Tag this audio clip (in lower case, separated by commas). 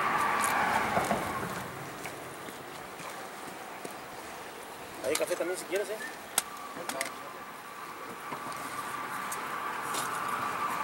speech